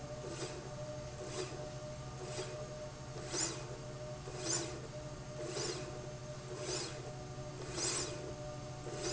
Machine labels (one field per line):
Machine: slide rail